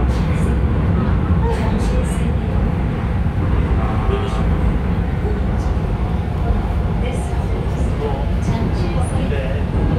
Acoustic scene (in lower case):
subway train